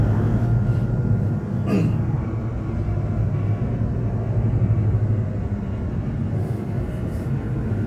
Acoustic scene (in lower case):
subway train